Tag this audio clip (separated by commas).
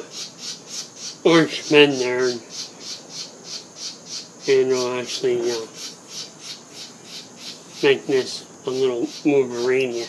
Speech, inside a small room